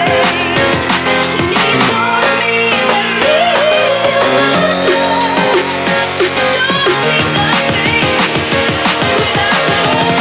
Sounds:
dubstep
music

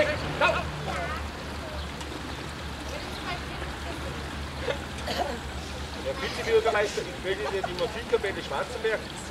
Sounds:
stream

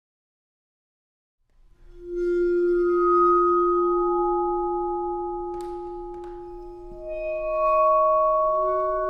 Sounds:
music
playing vibraphone
vibraphone

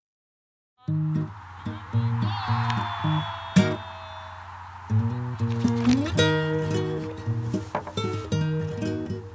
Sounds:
music

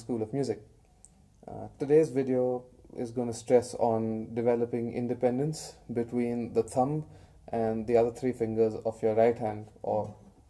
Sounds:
speech

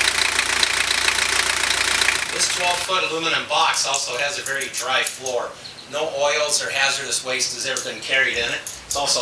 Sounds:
speech

